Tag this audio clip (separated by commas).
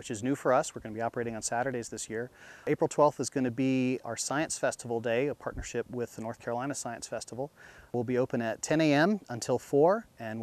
Speech